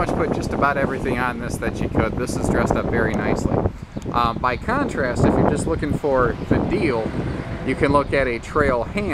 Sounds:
Speech

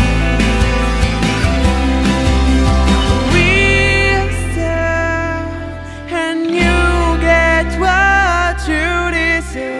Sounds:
Music

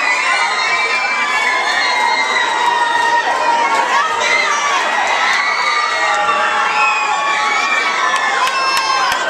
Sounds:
Speech

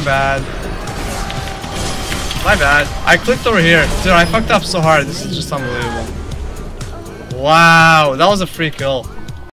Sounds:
Speech, Musical instrument, Music

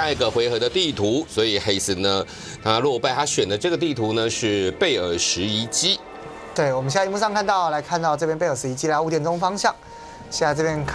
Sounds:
Music, Speech

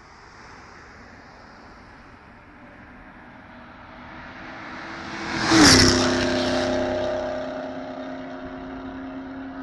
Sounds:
Car, Vehicle, auto racing

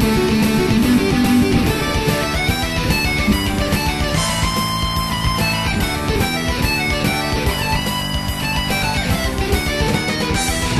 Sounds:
Electric guitar, Musical instrument, Plucked string instrument, Music, Acoustic guitar, Strum

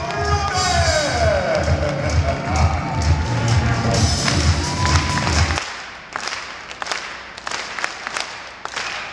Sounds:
thud

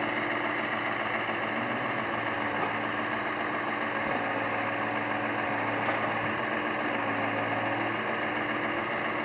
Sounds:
Vehicle

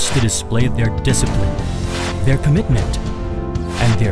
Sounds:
Music, Speech

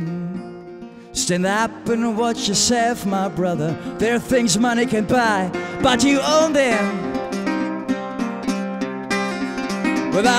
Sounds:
Music

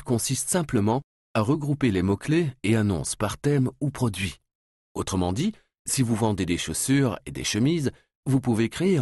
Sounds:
Speech

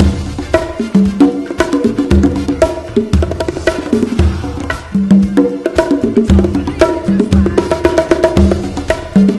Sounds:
playing bongo

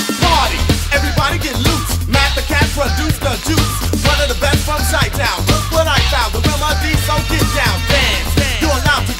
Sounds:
Disco

